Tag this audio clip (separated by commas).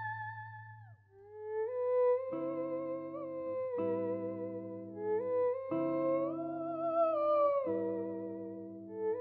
playing theremin